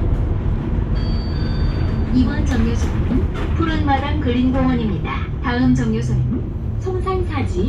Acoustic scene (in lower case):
bus